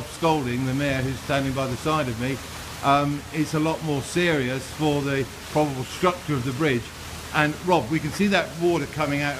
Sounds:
speech

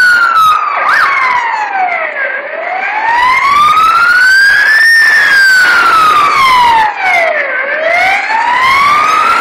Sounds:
truck
emergency vehicle
vehicle
fire truck (siren)

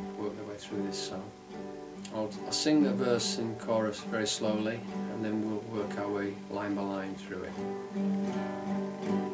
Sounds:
plucked string instrument
musical instrument
guitar
speech
music

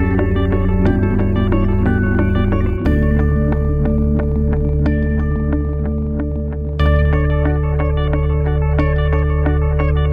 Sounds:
music

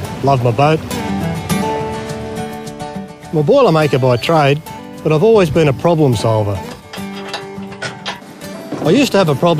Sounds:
music
speech

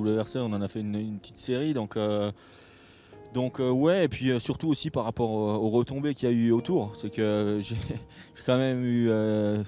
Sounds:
speech
music

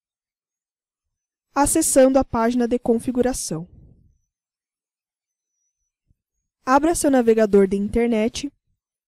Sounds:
speech

